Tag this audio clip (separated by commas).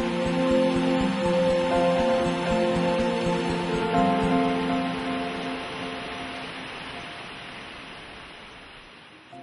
Stream